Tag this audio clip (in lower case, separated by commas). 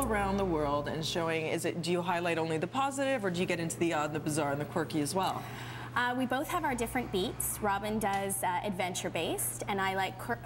television, speech